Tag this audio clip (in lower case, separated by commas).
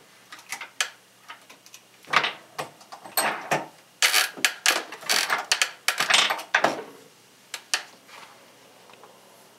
printer